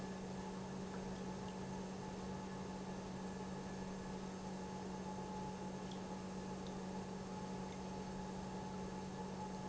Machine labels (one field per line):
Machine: pump